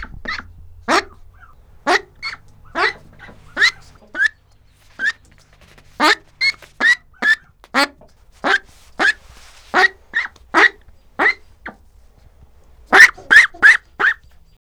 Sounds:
fowl
animal
livestock

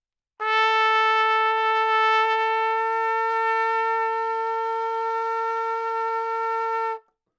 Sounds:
brass instrument
music
musical instrument
trumpet

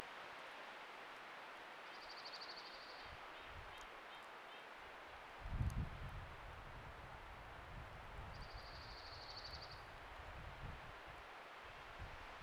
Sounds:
wind
wild animals
bird
bird vocalization
animal
chirp
water
stream

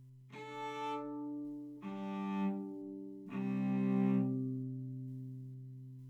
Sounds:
music
bowed string instrument
musical instrument

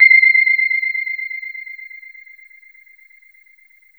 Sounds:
piano
keyboard (musical)
music
musical instrument

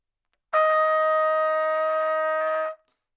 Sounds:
brass instrument
trumpet
music
musical instrument

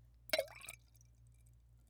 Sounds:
liquid

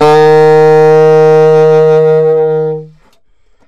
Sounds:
wind instrument
musical instrument
music

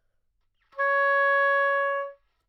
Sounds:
wind instrument
musical instrument
music

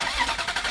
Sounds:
engine

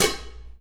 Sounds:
home sounds
dishes, pots and pans

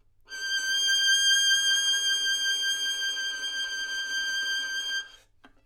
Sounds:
musical instrument
music
bowed string instrument

